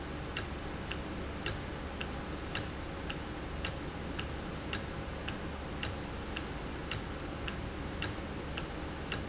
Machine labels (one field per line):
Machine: valve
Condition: normal